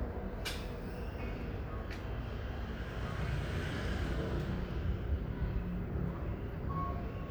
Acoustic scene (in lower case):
residential area